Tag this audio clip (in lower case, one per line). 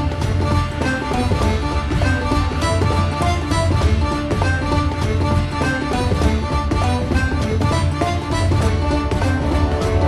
theme music
music